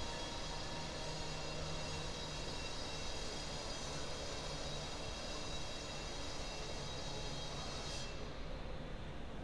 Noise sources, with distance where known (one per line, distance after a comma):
unidentified powered saw, near